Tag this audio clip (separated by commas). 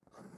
Domestic sounds, Writing